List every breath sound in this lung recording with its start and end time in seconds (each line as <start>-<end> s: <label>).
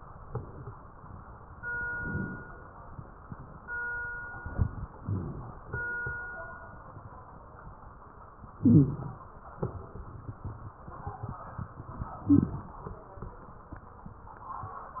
1.86-2.54 s: inhalation
5.01-5.69 s: inhalation
5.01-5.69 s: wheeze
8.63-8.98 s: wheeze
8.63-9.32 s: inhalation
12.26-12.60 s: wheeze
12.26-12.87 s: inhalation